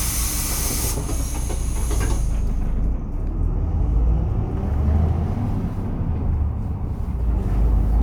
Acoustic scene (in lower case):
bus